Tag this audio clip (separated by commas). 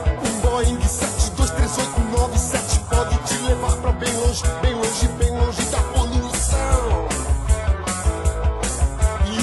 Music